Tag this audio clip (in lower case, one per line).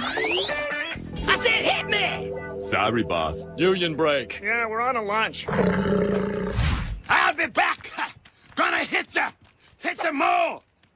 roar
speech
music